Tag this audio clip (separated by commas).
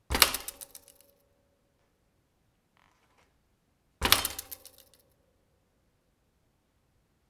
Vehicle, Bicycle, Mechanisms